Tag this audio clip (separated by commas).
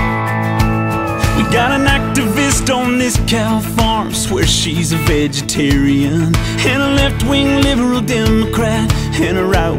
Music